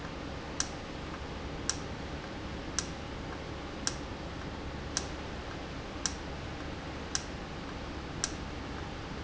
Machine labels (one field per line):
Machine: valve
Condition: normal